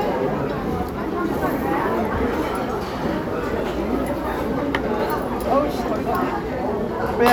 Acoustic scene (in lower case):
restaurant